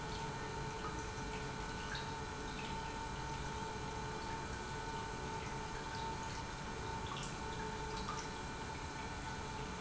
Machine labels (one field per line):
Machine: pump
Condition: normal